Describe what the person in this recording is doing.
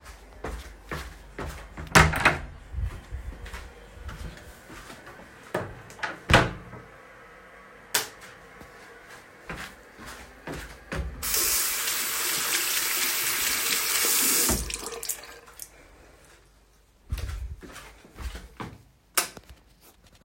I walked toward the bathroom, opened the door, and entered. After closing the door, I turned on the light switch and washed my hands at the sink. I finished by turning off the light switch and leaving the room.